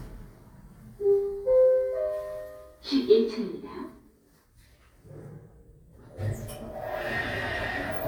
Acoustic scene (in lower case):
elevator